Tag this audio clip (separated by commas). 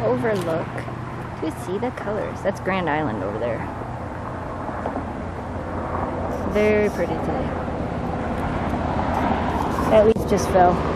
outside, rural or natural, Speech